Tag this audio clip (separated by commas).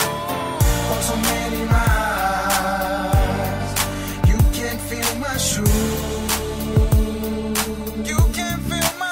Music